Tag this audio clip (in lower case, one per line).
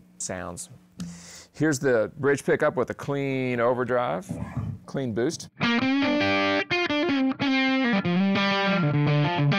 speech
distortion
music